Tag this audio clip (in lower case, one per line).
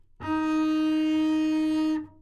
music
bowed string instrument
musical instrument